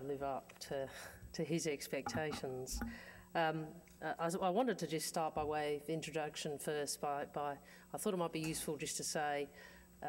A woman speech nearby